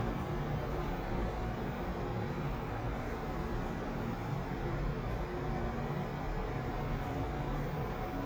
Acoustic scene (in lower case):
elevator